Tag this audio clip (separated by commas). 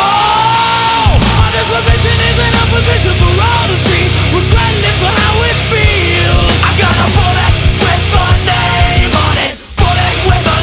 Music